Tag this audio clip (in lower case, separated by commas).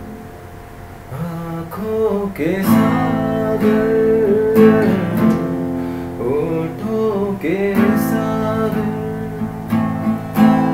music, guitar, plucked string instrument, electric guitar, acoustic guitar, strum, musical instrument